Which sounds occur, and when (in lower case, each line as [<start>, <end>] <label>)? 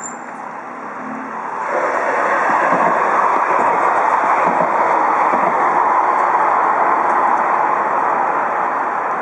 [0.00, 0.35] squeal
[0.00, 1.58] truck
[1.50, 9.21] railroad car
[2.38, 2.99] clickety-clack
[3.24, 3.86] clickety-clack
[4.12, 4.82] clickety-clack
[5.19, 5.55] clickety-clack